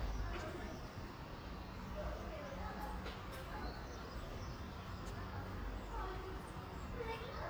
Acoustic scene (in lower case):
residential area